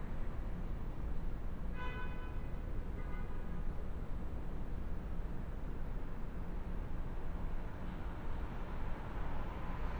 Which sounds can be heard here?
medium-sounding engine, car horn